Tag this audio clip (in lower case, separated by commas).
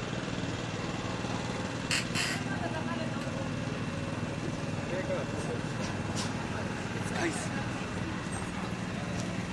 speech, vehicle